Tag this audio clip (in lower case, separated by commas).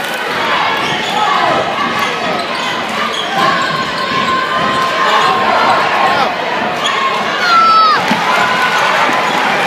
basketball bounce, speech